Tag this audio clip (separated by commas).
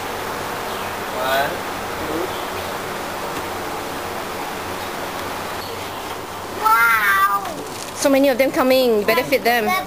Speech